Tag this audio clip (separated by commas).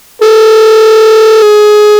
Alarm, Telephone